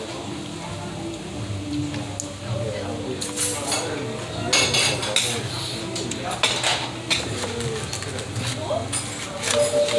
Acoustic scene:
restaurant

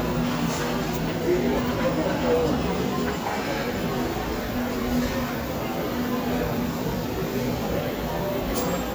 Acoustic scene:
crowded indoor space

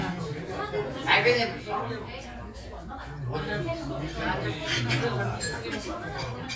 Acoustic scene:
crowded indoor space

